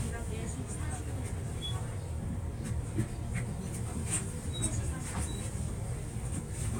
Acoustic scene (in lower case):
bus